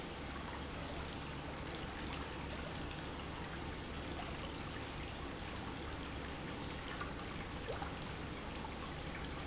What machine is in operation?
pump